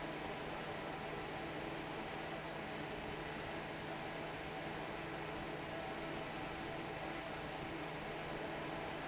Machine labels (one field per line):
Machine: fan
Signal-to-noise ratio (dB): 6 dB